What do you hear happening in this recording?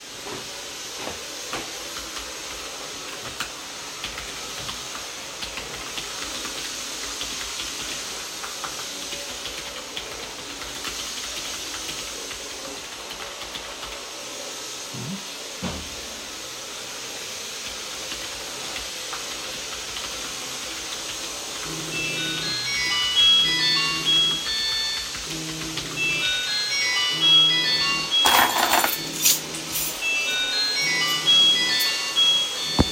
Another person was vacuuming in the next room while I was typing at the computer. In all that the phone started to ring. As I knew this to be just a signal from a neighbour I grabbed my keys to went out.